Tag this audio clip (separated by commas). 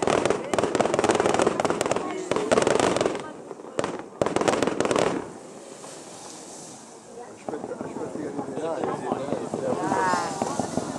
Firecracker, Fireworks, Speech